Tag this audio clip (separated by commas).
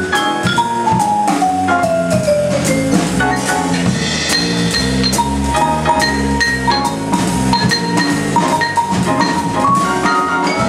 Glockenspiel, playing marimba, Marimba, Mallet percussion